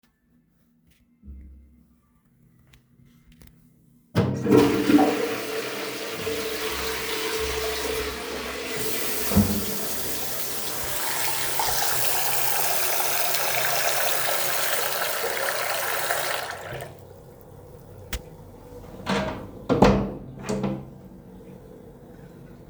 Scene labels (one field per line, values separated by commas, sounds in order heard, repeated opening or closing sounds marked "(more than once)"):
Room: bathroom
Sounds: toilet flushing, running water, window